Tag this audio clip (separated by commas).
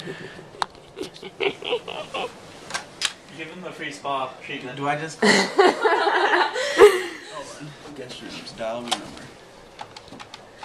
Speech